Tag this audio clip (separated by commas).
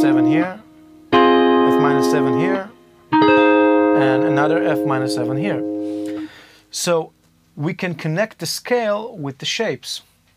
Music, Musical instrument, Speech, Guitar, Electronic tuner, inside a small room, Plucked string instrument